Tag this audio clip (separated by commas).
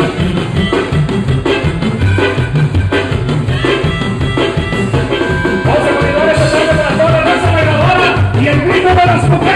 Music